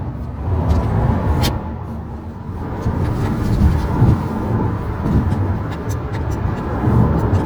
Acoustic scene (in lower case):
car